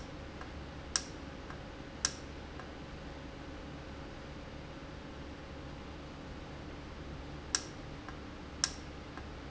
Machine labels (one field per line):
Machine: valve